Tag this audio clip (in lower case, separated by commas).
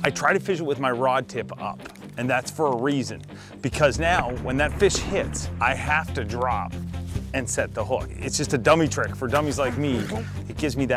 speech, music